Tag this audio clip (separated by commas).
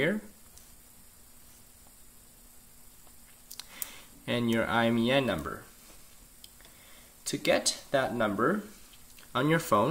Speech